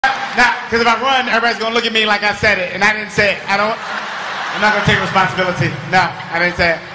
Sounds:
Speech

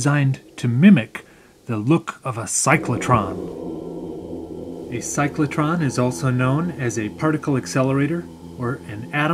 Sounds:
Speech

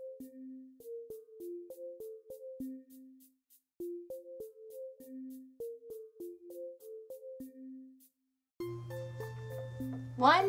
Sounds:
Music

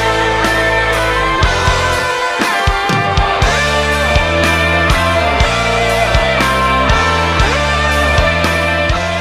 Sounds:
Strum, Musical instrument, Bass guitar, Music, Plucked string instrument, Guitar

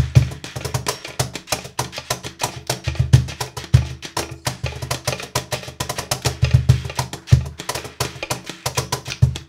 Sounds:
Music, Percussion

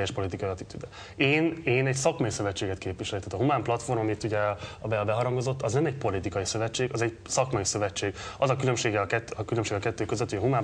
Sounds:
Speech

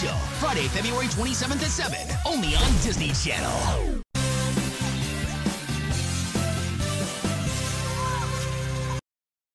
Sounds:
Music, Speech

